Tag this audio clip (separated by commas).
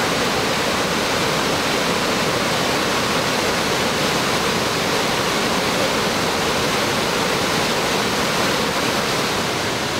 waterfall burbling, Waterfall, Stream